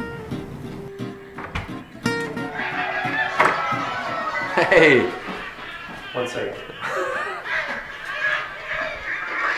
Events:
0.0s-5.6s: music
1.3s-1.7s: door
2.2s-2.3s: door
2.4s-9.5s: crowd
3.3s-3.6s: door
4.5s-9.5s: laughter
4.5s-5.1s: male speech
6.1s-6.6s: male speech

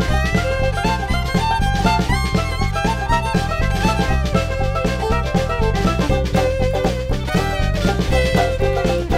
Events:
0.0s-9.1s: music

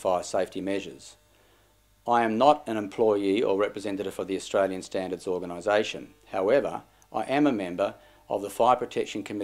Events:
0.0s-1.1s: man speaking
0.0s-9.4s: mechanisms
1.2s-1.8s: breathing
2.0s-6.1s: man speaking
6.3s-6.8s: man speaking
7.1s-7.9s: man speaking
8.0s-8.3s: breathing
8.3s-9.4s: man speaking

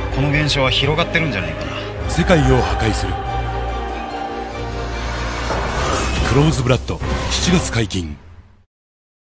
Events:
0.0s-8.6s: music
0.1s-1.4s: man speaking
0.2s-1.8s: choir
2.0s-3.1s: man speaking
2.1s-4.6s: choir
4.5s-6.7s: sound effect
6.1s-8.2s: man speaking
7.0s-8.6s: sound effect

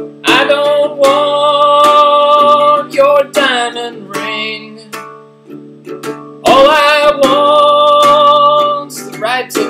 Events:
0.0s-9.6s: music
0.2s-2.8s: male singing
1.0s-1.0s: music
3.0s-3.2s: male singing
3.3s-3.9s: male singing
4.1s-4.9s: male singing
6.4s-9.6s: male singing

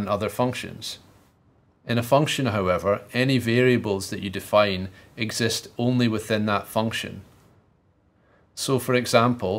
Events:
0.0s-9.5s: background noise
0.0s-1.0s: man speaking
1.8s-7.2s: man speaking
8.2s-8.5s: breathing
8.5s-9.5s: man speaking

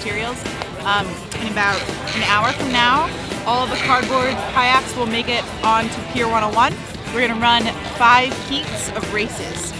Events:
0.0s-0.4s: female speech
0.0s-9.7s: mechanisms
0.5s-0.6s: generic impact sounds
0.8s-1.1s: female speech
1.2s-1.4s: generic impact sounds
1.3s-3.0s: female speech
3.4s-5.8s: female speech
6.1s-6.7s: female speech
7.0s-7.7s: female speech
8.0s-8.7s: female speech
8.9s-9.4s: female speech
9.4s-9.6s: generic impact sounds

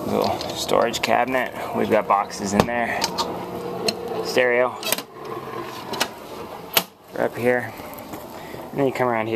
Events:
0.0s-9.3s: mechanisms
0.1s-0.6s: generic impact sounds
0.2s-3.2s: man speaking
2.5s-2.6s: generic impact sounds
2.9s-3.2s: generic impact sounds
3.8s-4.0s: generic impact sounds
4.2s-4.9s: man speaking
4.7s-5.1s: generic impact sounds
5.8s-6.1s: generic impact sounds
6.6s-6.8s: generic impact sounds
7.0s-7.7s: man speaking
7.6s-7.6s: man speaking
8.7s-9.3s: man speaking

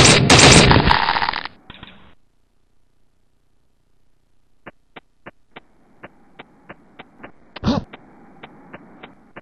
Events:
0.0s-0.8s: gunshot
0.0s-9.4s: background noise
0.7s-1.6s: sound effect
1.7s-2.2s: sound effect
4.7s-9.4s: run
5.7s-9.4s: wind
7.6s-7.9s: human voice

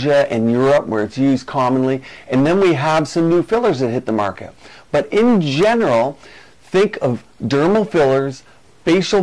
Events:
0.0s-2.0s: male speech
0.0s-9.2s: mechanisms
2.0s-2.2s: breathing
2.3s-4.5s: male speech
4.6s-4.8s: breathing
4.9s-6.1s: male speech
6.2s-6.5s: breathing
6.6s-7.2s: male speech
7.4s-8.4s: male speech
8.4s-8.6s: breathing

